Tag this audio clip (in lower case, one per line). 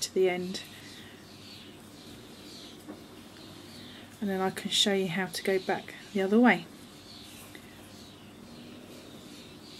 speech
inside a small room